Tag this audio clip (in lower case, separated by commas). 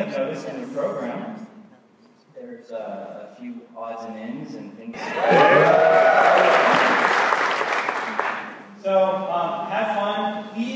speech, man speaking